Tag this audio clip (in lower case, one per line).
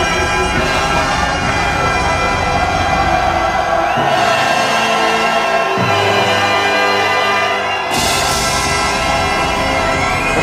music